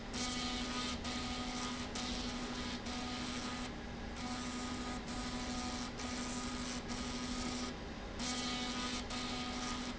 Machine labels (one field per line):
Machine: slide rail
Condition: abnormal